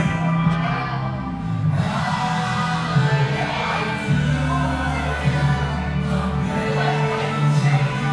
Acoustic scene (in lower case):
cafe